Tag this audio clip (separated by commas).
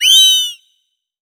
Animal